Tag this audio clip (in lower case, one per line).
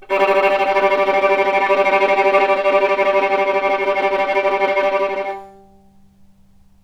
music
musical instrument
bowed string instrument